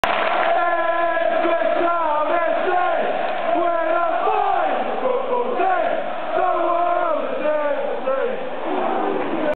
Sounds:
Male singing, Choir

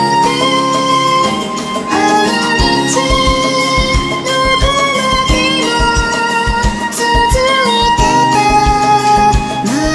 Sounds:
fiddle, Musical instrument, Music

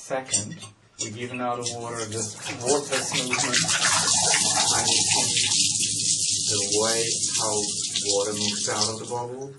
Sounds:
Speech, inside a small room

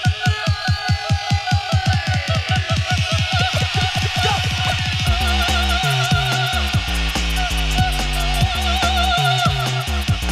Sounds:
Disco, Music

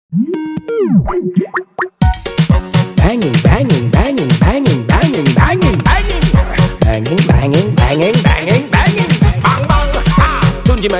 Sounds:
Music

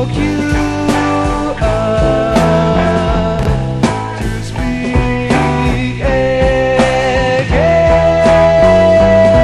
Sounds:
Music, Psychedelic rock

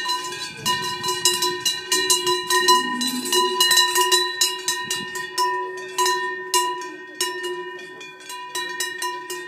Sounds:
bovinae cowbell

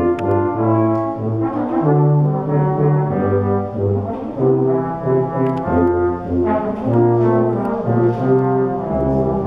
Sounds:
playing french horn

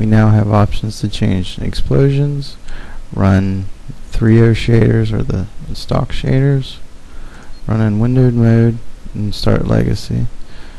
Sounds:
Speech

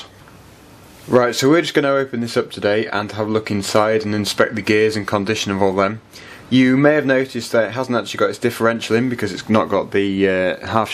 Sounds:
Speech

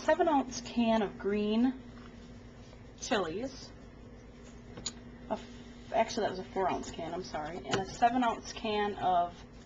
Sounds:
Speech

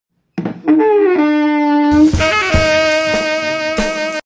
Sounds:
Music

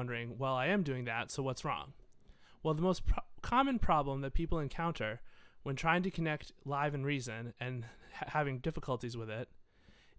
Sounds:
Speech

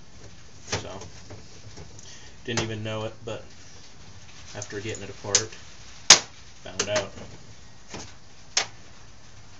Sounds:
Speech, inside a small room

